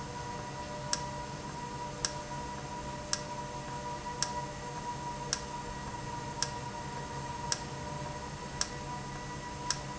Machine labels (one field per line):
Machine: valve